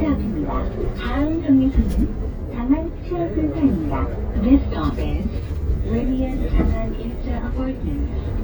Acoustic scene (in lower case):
bus